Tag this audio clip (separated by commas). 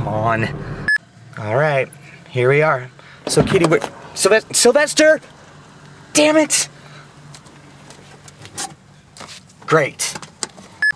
Door